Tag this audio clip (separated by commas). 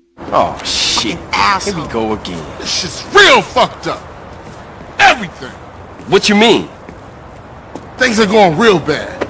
Speech